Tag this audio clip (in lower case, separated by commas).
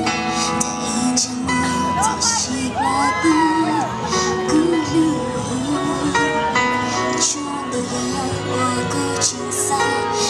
speech, female singing, music